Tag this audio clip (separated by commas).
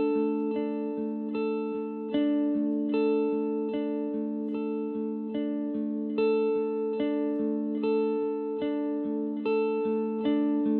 Music